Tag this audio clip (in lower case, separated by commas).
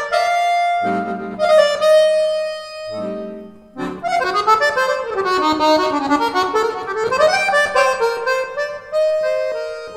music, playing accordion, accordion